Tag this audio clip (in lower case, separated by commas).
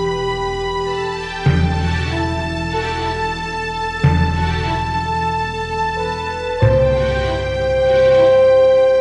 music, theme music